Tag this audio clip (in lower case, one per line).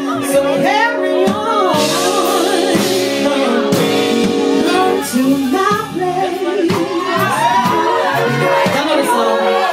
speech
music